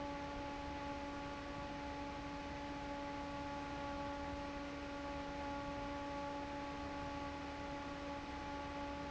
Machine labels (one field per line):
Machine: fan